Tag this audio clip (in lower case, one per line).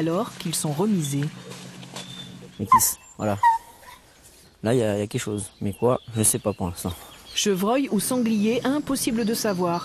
speech